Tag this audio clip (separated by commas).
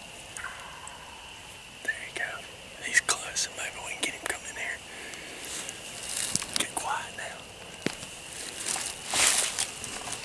Bird, Speech